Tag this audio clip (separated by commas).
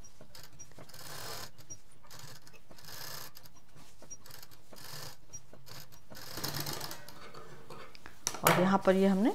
mouse pattering